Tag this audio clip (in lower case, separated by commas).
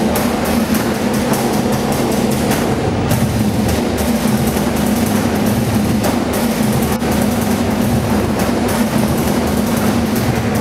tap, music